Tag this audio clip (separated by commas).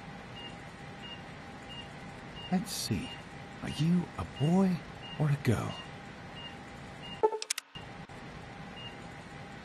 Speech